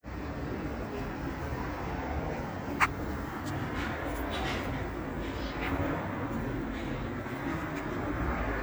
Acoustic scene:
residential area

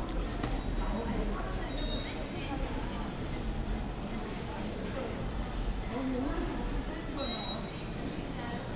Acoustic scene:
subway station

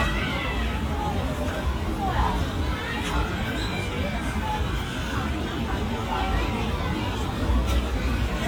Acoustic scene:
park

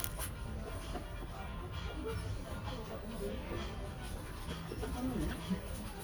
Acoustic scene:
crowded indoor space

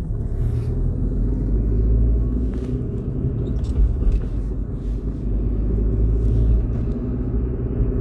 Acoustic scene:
car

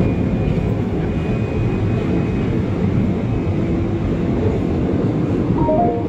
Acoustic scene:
subway train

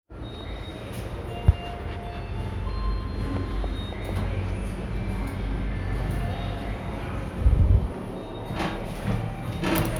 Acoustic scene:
elevator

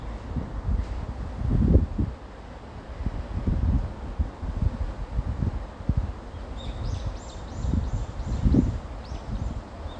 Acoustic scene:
residential area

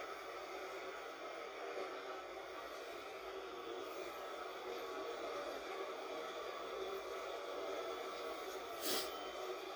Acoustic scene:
bus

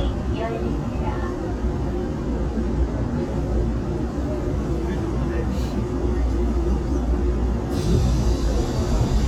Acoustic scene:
subway train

